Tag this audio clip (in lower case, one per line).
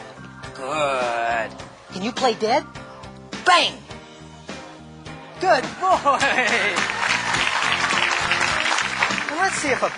speech
music